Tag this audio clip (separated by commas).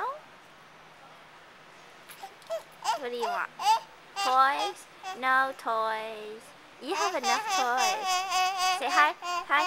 Speech